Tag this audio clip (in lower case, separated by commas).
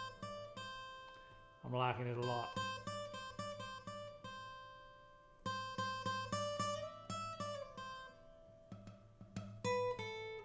speech, electronic tuner, guitar, musical instrument, music, plucked string instrument